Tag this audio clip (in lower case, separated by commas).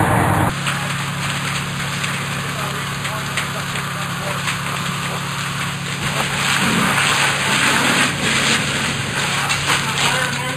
crackle, speech